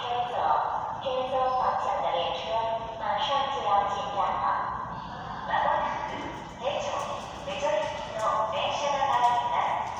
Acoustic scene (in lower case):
subway station